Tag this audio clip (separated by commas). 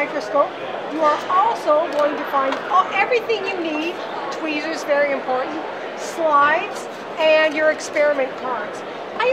Speech